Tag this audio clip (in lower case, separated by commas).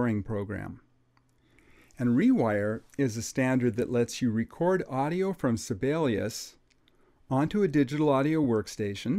speech